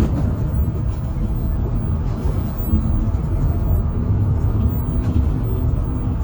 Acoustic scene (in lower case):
bus